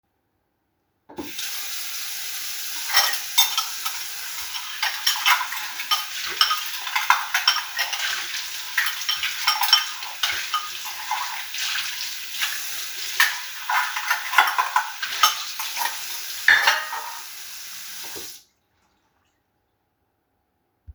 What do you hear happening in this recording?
I was in the kitchen washing the dishes.